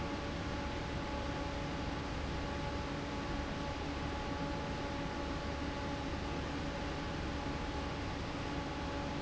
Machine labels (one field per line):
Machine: fan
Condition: normal